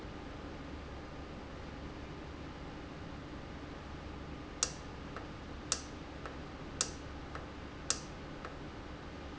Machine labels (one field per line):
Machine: valve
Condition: normal